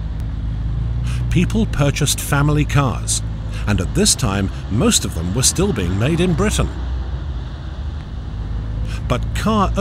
Man talking while car passes